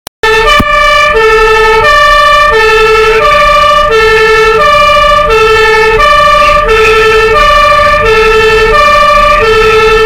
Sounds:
fire engine, motor vehicle (road), vehicle, truck

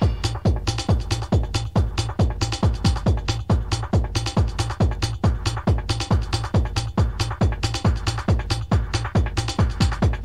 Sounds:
music

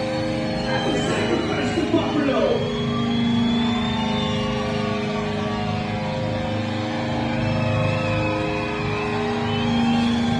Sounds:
speech, music

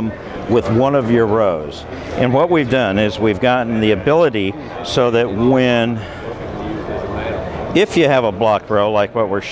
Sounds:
speech

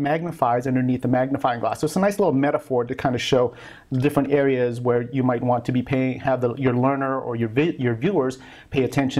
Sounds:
speech

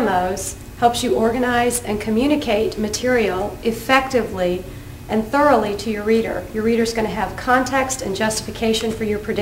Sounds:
female speech, speech

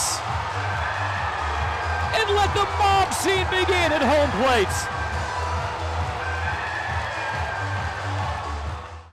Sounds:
speech, music

